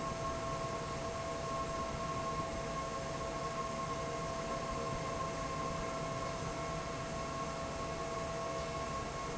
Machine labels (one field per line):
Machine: fan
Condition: normal